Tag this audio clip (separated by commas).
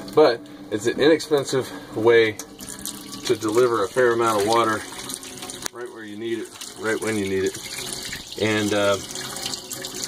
Speech